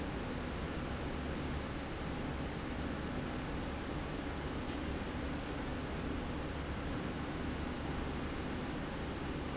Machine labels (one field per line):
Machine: slide rail